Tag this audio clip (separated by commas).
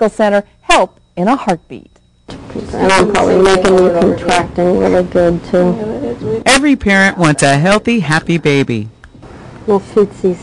Speech